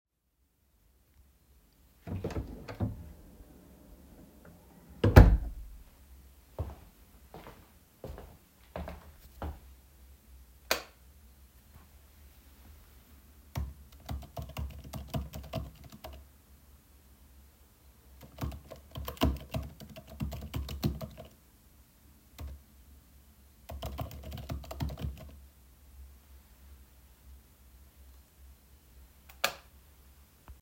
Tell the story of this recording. I opened the room door and walked to the desk. I turned on the light and typed on the keyboard for several seconds.